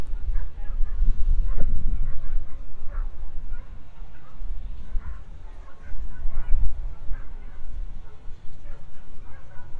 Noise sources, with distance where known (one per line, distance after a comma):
dog barking or whining, far